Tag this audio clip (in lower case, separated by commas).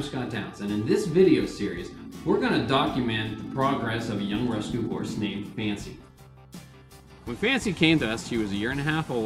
speech, music